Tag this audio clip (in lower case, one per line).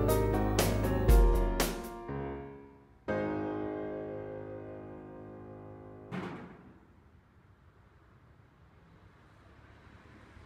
running electric fan